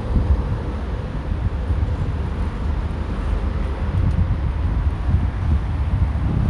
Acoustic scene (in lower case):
street